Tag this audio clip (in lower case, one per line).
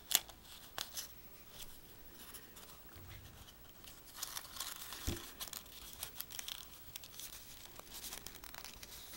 crumpling
inside a small room